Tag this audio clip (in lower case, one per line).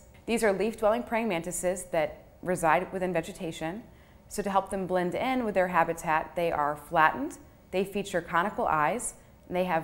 speech